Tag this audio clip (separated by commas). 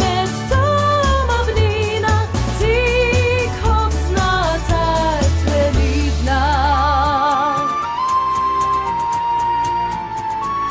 Jingle (music), Music